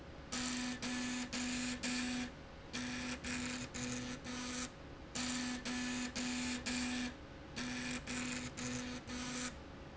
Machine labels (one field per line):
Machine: slide rail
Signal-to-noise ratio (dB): 6 dB